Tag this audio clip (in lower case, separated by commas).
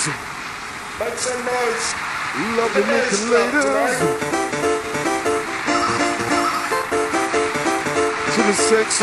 speech, techno, electronic music, music